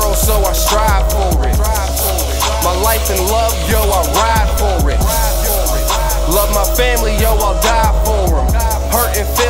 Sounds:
Music

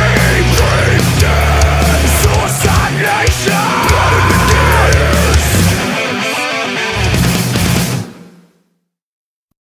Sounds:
Music

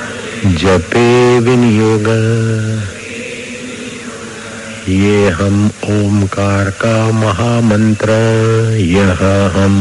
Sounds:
Mantra

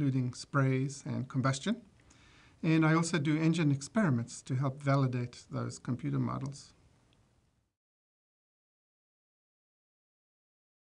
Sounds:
Speech

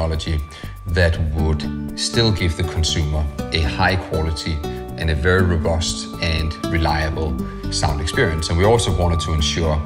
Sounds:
Music, Speech

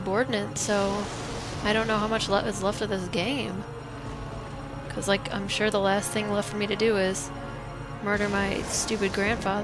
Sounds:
Speech, Music

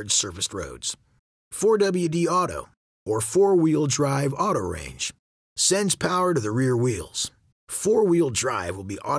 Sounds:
Speech

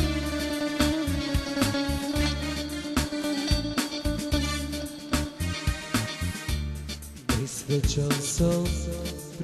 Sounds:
Music

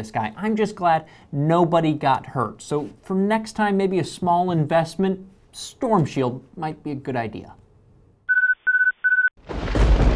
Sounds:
inside a small room, Speech

